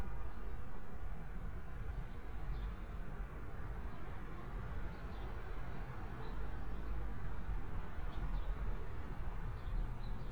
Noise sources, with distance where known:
car horn, far

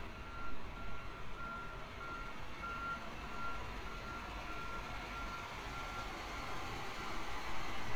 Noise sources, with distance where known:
reverse beeper, far

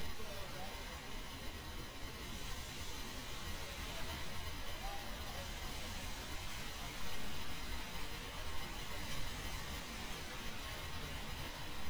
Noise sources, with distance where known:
background noise

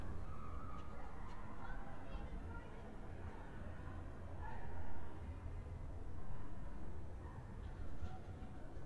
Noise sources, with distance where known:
person or small group talking, far

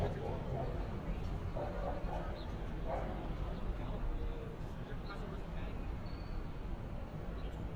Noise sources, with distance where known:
person or small group talking, near; dog barking or whining, far

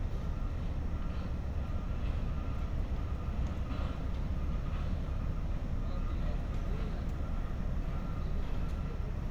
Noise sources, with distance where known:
engine of unclear size, far; unidentified alert signal, far; person or small group talking, far

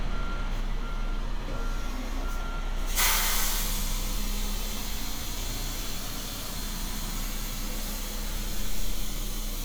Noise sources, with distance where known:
large-sounding engine, near

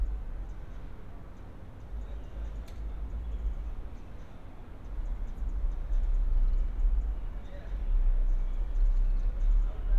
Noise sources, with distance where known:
music from an unclear source

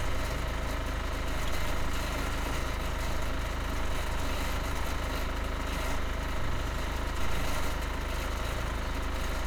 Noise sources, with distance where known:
engine of unclear size

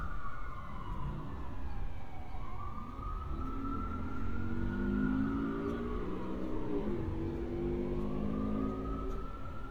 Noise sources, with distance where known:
medium-sounding engine, near; siren, far

